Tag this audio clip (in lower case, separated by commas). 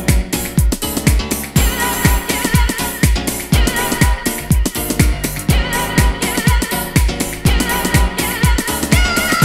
music